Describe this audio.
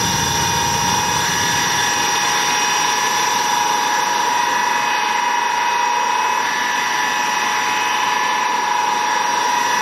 A loud airplane engine idling